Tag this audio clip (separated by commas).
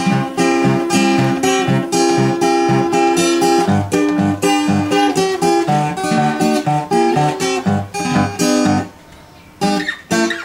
Acoustic guitar, Guitar, Music, Strum, Musical instrument, Plucked string instrument